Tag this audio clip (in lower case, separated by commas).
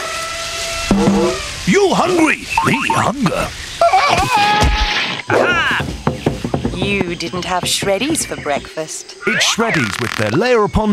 speech